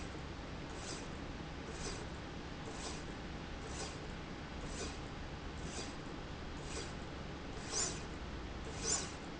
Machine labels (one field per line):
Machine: slide rail